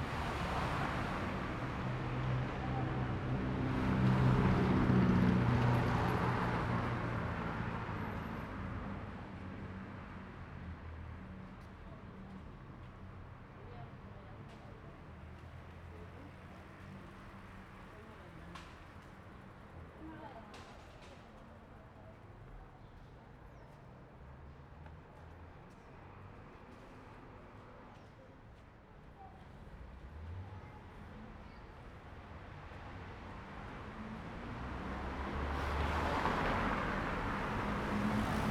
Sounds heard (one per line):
car
car wheels rolling
people talking
car engine accelerating